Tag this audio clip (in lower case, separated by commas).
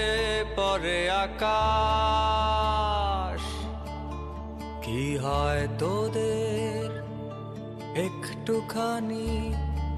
music